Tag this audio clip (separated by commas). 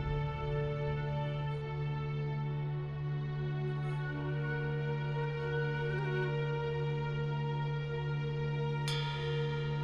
Music